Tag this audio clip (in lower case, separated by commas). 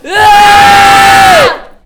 shout, human voice, screaming, yell